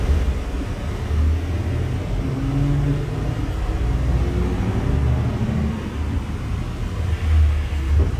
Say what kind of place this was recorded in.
bus